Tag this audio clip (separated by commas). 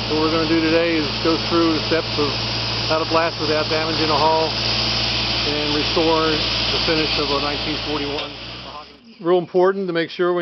Speech